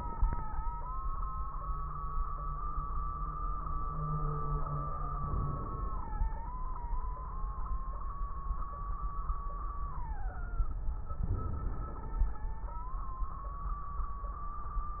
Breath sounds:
Inhalation: 5.14-6.34 s, 11.29-12.49 s

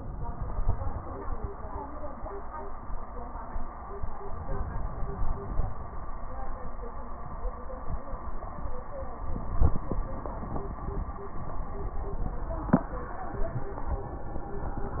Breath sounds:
Inhalation: 4.34-5.84 s

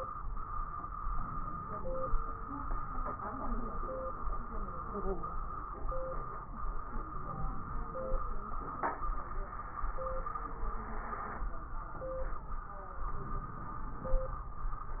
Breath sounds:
Inhalation: 1.10-2.13 s, 7.10-8.25 s, 13.19-14.22 s

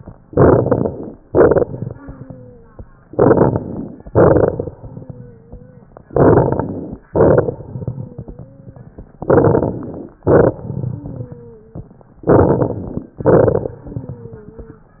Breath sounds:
Inhalation: 0.27-1.16 s, 3.07-4.04 s, 6.07-7.04 s, 9.20-10.17 s, 12.22-13.11 s
Exhalation: 1.25-1.98 s, 4.08-4.76 s, 7.10-8.06 s, 10.27-11.23 s, 13.19-13.74 s
Wheeze: 1.86-2.79 s, 4.80-5.88 s, 7.86-8.82 s, 10.93-11.90 s, 13.83-14.97 s
Crackles: 0.27-1.16 s, 1.25-1.98 s, 3.07-4.04 s, 4.08-4.76 s, 6.07-7.04 s, 7.10-8.06 s, 9.20-10.17 s, 10.27-11.23 s, 12.22-13.11 s, 13.19-13.74 s

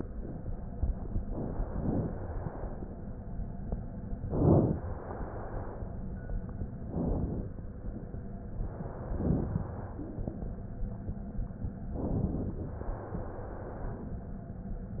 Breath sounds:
Inhalation: 4.26-4.82 s, 6.91-7.47 s, 11.96-12.77 s
Exhalation: 1.26-2.85 s, 4.87-6.09 s, 8.53-10.12 s, 12.80-14.16 s

